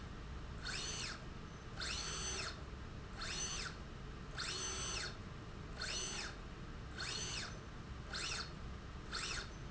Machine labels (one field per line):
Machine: slide rail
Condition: normal